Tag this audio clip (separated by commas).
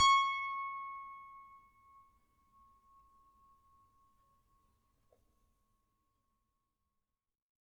Keyboard (musical), Piano, Music, Musical instrument